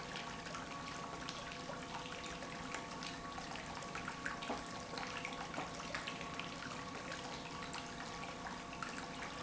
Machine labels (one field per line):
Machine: pump